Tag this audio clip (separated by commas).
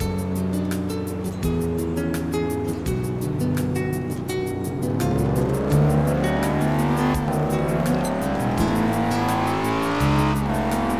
Music